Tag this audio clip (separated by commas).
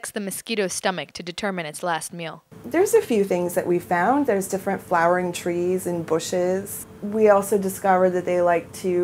Speech